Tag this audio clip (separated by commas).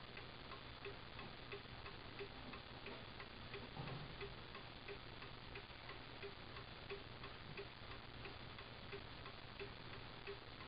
Tick-tock